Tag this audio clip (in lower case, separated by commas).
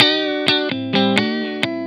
electric guitar, music, guitar, musical instrument, plucked string instrument